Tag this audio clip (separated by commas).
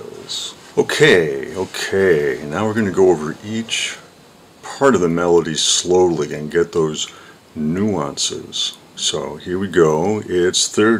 Speech